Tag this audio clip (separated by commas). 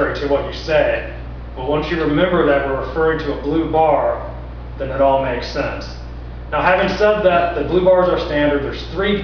Speech